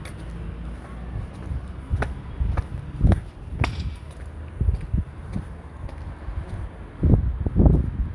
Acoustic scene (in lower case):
residential area